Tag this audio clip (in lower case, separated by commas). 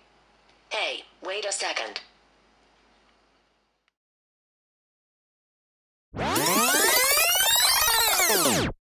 speech